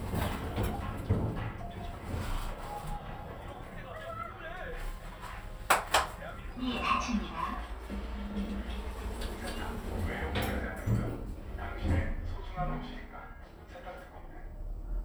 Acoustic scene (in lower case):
elevator